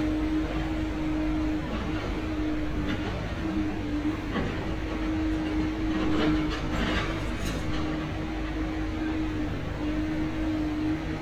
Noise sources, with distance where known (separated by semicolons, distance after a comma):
engine of unclear size